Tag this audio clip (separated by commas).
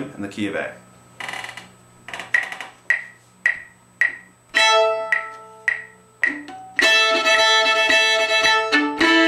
Music, Violin, Musical instrument, Bluegrass, Speech